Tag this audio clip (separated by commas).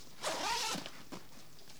Domestic sounds, Zipper (clothing)